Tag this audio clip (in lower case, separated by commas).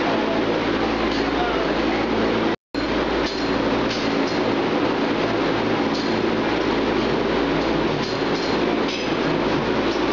speech